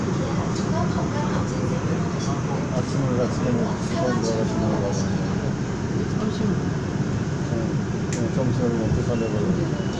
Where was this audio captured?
on a subway train